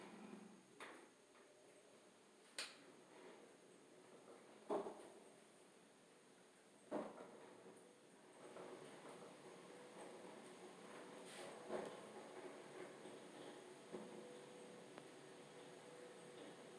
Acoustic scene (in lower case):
elevator